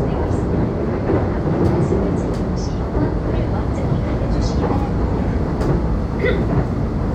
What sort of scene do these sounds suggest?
subway train